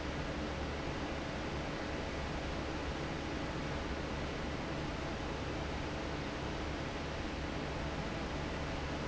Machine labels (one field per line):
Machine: fan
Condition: normal